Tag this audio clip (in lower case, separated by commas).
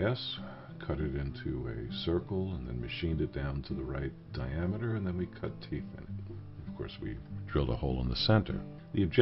speech, music